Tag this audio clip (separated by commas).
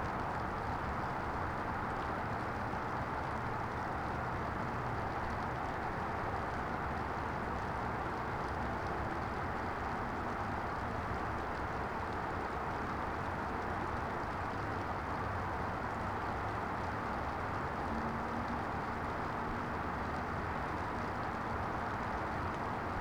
Water, Rain